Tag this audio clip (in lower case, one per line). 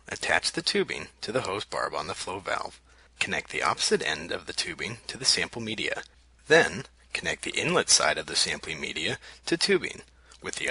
speech